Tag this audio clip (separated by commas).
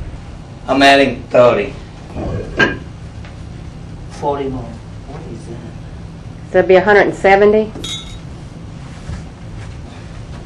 clink, Speech